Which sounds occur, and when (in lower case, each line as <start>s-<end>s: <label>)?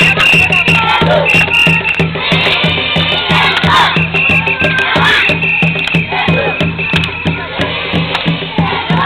0.0s-0.9s: whistle
0.0s-1.9s: child singing
0.0s-9.0s: music
0.0s-9.0s: singing
1.2s-2.0s: whistle
1.3s-1.5s: clapping
1.8s-2.0s: clapping
2.1s-4.0s: child singing
3.5s-3.7s: clapping
3.9s-4.9s: whistle
4.1s-5.6s: child singing
4.6s-4.7s: clapping
5.1s-7.4s: whistle
5.7s-6.0s: clapping
6.7s-7.7s: child singing
6.9s-7.1s: clapping
8.1s-8.2s: clapping
8.5s-9.0s: child singing